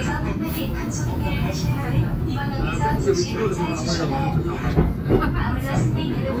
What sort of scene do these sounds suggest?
subway train